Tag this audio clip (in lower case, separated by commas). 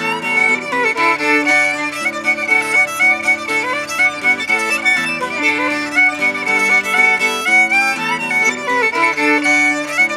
fiddle, musical instrument, music